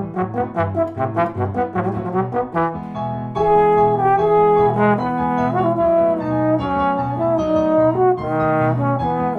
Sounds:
Trombone, Brass instrument

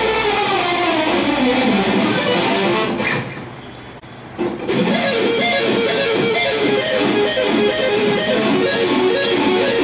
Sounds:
Strum, Musical instrument, Acoustic guitar, Plucked string instrument, Music, Guitar

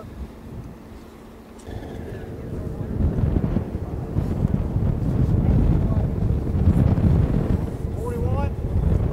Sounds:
outside, rural or natural, Speech, Wind noise (microphone)

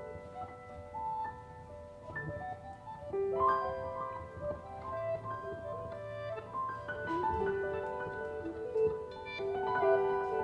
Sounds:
Music

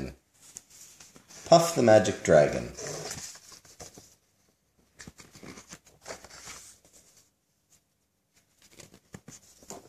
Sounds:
inside a small room, Speech

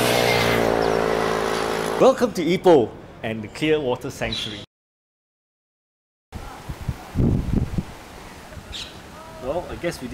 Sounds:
Wind, Wind noise (microphone)

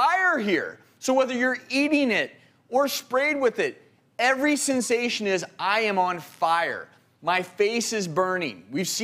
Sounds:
Speech

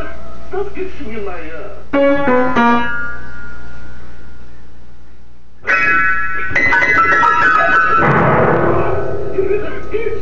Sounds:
Speech, Music

